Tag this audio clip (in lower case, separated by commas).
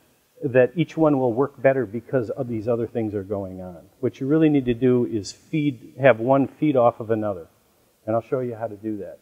speech